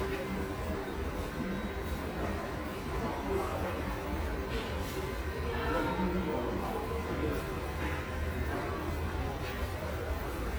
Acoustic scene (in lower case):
subway station